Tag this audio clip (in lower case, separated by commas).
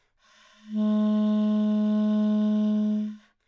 musical instrument, music, wind instrument